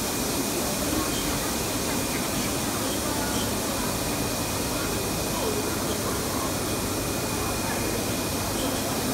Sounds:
Speech, Printer

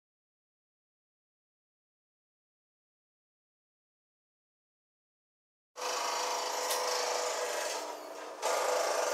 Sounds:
Tools, Power tool, Drill

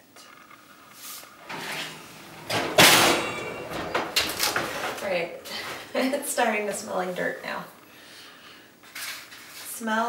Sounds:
inside a small room, Speech

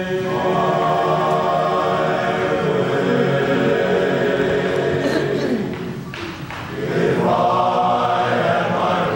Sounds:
Music, Speech

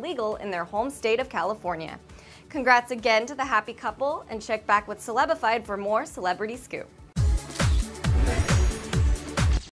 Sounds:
Music, Speech

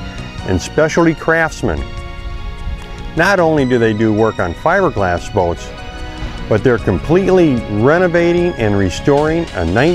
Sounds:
Music, Speech

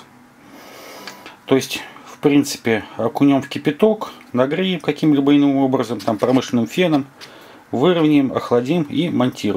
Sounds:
Speech

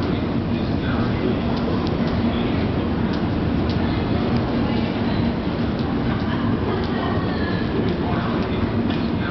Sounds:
Vehicle, metro

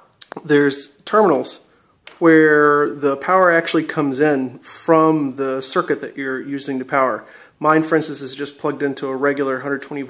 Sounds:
Speech

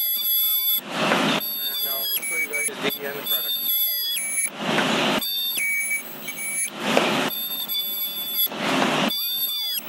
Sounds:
Squeal, inside a small room, Speech

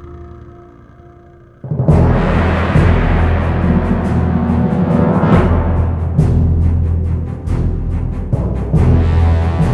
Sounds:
Music, Jazz

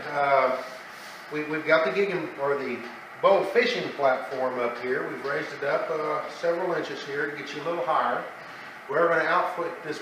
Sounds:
Speech

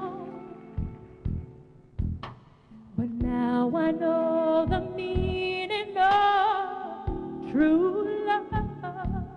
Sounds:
Female singing, Music

